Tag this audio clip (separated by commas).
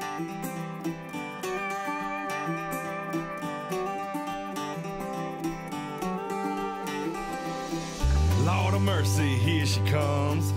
Music